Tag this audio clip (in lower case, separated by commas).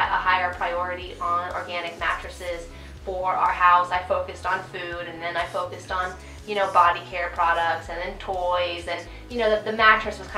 speech, inside a small room, music